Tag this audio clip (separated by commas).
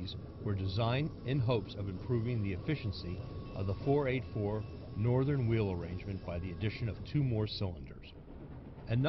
Speech